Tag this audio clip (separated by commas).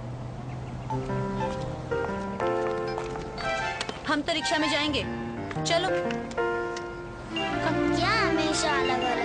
Speech, Music